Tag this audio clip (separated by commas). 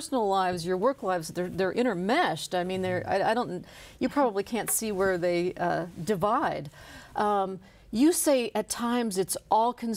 Speech